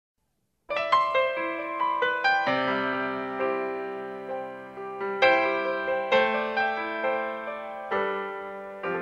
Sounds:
Music, Piano

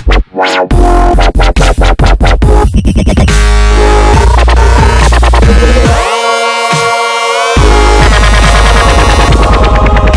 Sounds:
Electronic music, Dubstep, Music

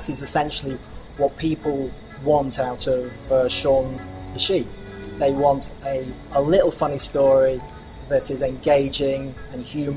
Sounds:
Music, Speech

